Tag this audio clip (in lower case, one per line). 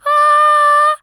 female singing
singing
human voice